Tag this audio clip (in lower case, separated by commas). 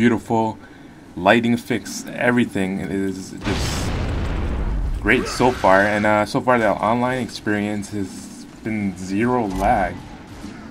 speech